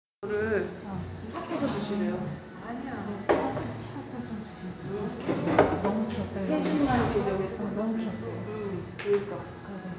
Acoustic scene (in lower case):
cafe